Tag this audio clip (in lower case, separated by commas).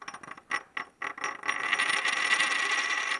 home sounds, coin (dropping)